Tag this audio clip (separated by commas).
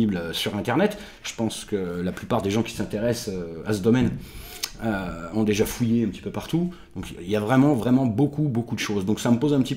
Speech